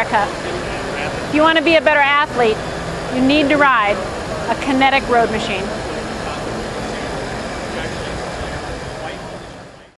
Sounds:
speech, vehicle, bicycle

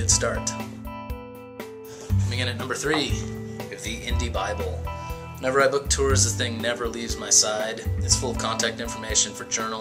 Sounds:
speech, soundtrack music, music

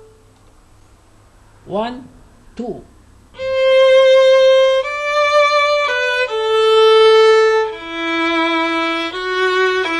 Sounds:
violin, musical instrument, speech, music

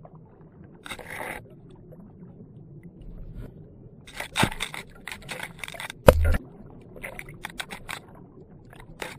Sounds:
single-lens reflex camera

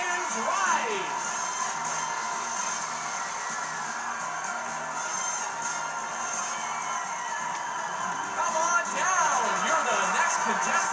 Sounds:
music, speech

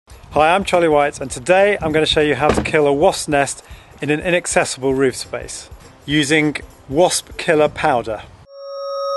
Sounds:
speech, music

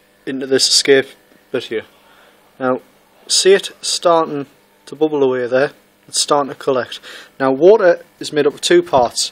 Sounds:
speech

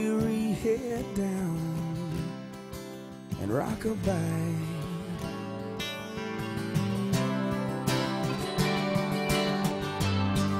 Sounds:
music

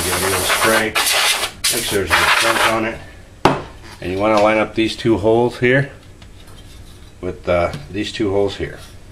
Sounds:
speech, inside a small room

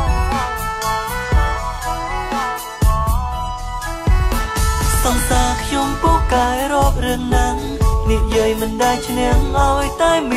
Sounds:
music

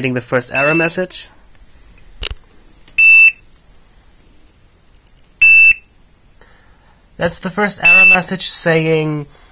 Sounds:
fire alarm, smoke detector, speech

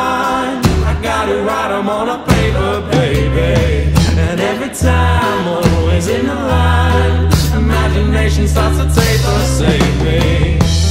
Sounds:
ska, music

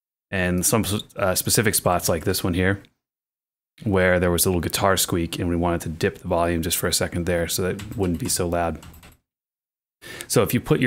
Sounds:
speech

